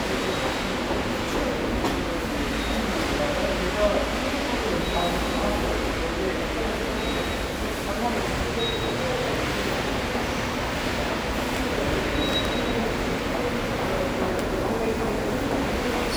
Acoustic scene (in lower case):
subway station